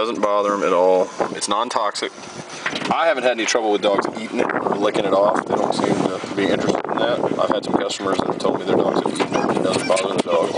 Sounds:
Speech

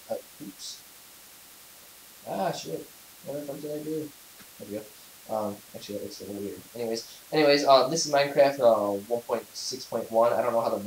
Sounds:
Speech

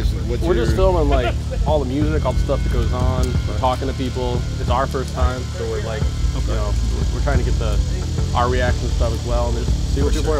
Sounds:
Speech, Music

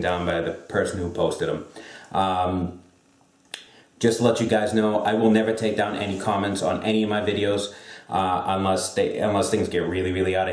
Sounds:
Speech

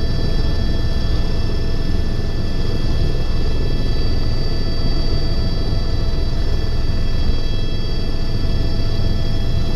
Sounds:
Helicopter, Vehicle

